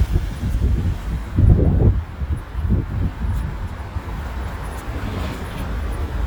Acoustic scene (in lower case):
residential area